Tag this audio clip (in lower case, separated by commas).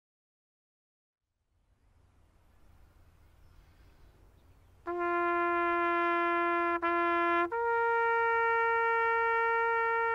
playing bugle